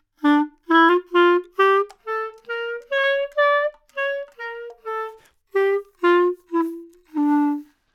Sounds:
music, wind instrument, musical instrument

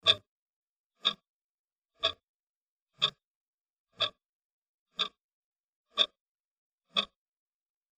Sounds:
mechanisms, clock

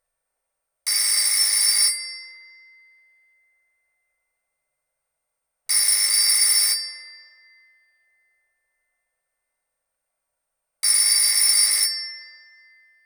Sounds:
telephone, alarm

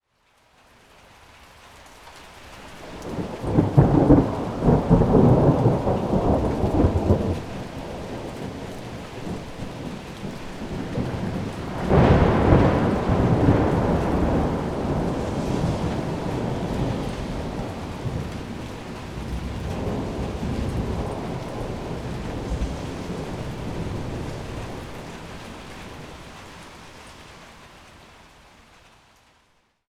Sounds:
rain, water, thunderstorm, thunder

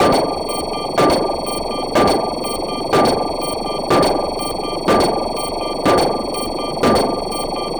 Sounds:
alarm

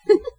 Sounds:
laughter, giggle, human voice

